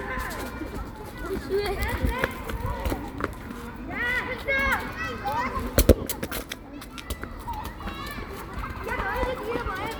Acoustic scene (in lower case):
park